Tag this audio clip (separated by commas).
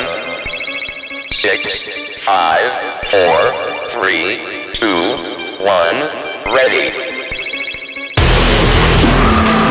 Music, Dubstep, Speech